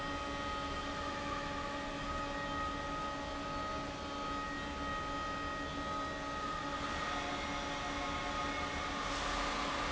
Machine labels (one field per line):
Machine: fan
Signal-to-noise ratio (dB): -6 dB